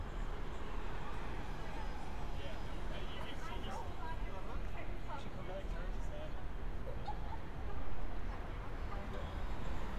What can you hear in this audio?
person or small group talking